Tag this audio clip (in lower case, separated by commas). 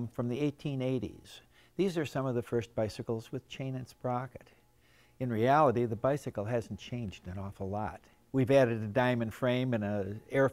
speech